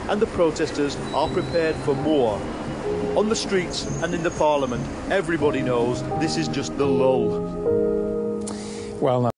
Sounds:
music, speech

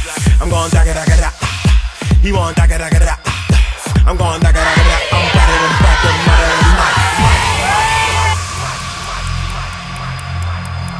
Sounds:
speech, music

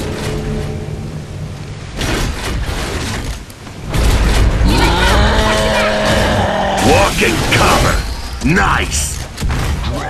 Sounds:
speech

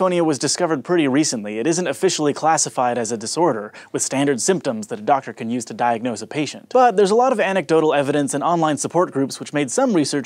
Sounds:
speech

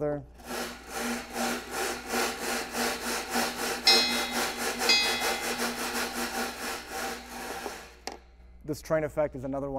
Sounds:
speech, percussion

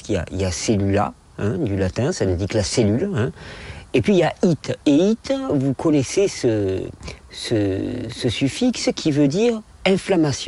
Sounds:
speech

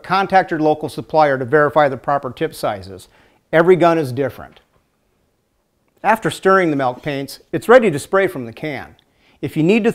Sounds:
speech

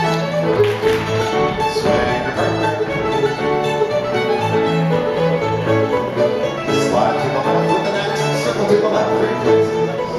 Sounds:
speech, music

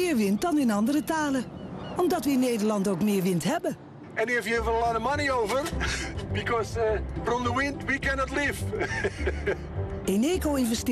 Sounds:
speech, music

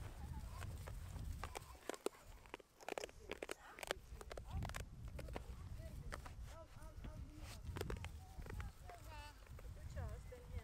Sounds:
goat bleating

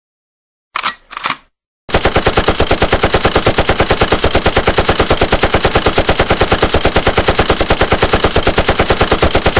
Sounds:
machine gun shooting

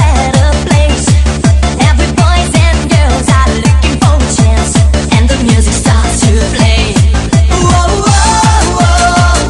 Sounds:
music, exciting music

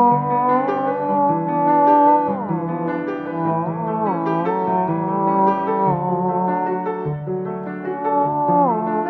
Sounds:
playing theremin

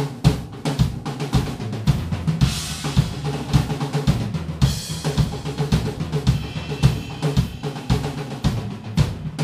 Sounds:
drum roll, percussion, rimshot, bass drum, snare drum, drum, drum kit

